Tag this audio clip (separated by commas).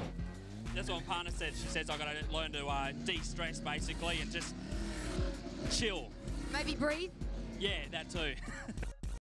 Car, Speech, Music, Vehicle